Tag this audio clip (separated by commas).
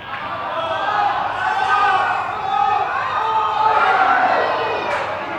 Human voice, Human group actions, Cheering, Shout